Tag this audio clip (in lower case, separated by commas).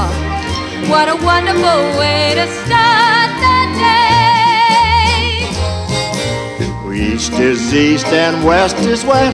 music, male singing, female singing